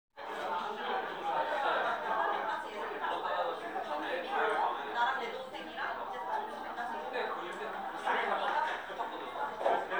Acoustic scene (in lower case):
crowded indoor space